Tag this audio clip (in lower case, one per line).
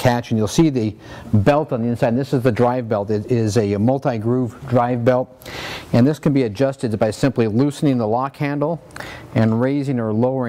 speech